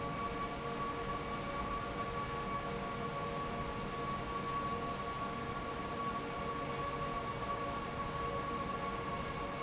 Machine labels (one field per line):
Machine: fan